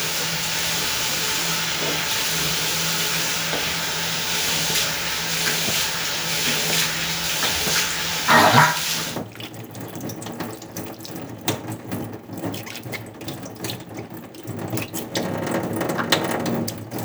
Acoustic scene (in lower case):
restroom